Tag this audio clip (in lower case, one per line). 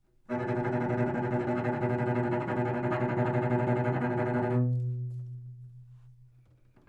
music
bowed string instrument
musical instrument